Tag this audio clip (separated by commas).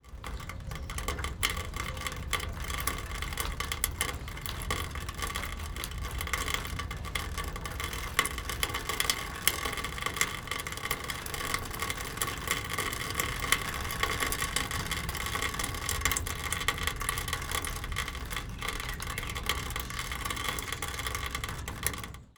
Water, Rain